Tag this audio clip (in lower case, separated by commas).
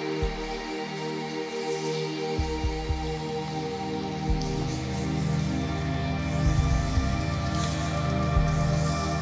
music